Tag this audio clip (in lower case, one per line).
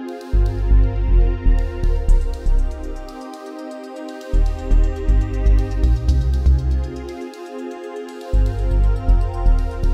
sampler
music